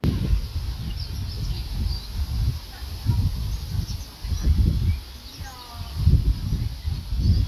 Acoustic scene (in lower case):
park